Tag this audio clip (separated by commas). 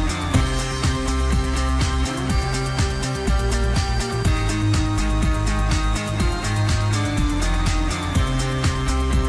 Music